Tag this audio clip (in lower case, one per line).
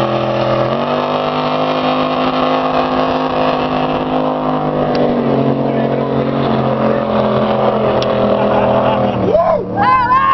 speech
speedboat
vehicle